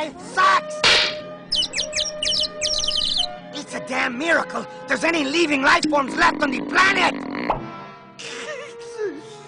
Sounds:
Bird, bird song, tweet

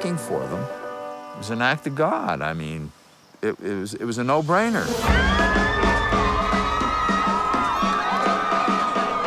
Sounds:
Music, Speech

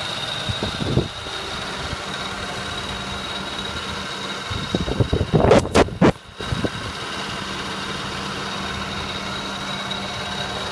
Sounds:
Car, Motor vehicle (road), Vehicle, Engine

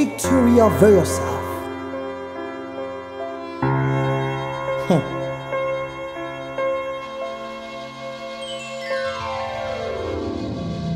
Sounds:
New-age music, Music

